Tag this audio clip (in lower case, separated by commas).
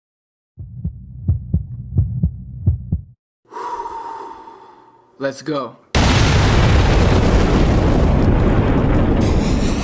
throbbing, hum, heartbeat